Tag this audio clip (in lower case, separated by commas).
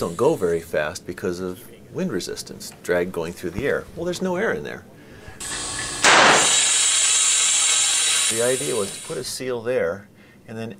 speech